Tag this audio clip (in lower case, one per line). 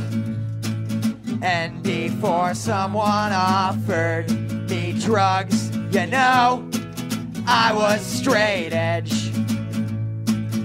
music